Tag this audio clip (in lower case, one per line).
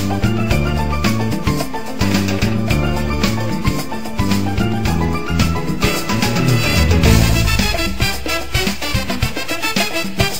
music